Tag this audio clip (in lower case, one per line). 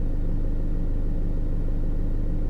engine